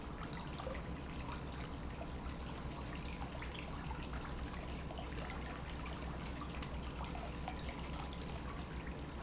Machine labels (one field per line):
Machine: pump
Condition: normal